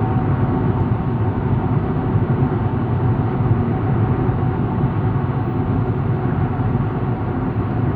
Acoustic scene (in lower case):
car